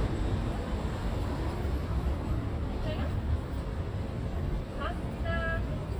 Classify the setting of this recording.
residential area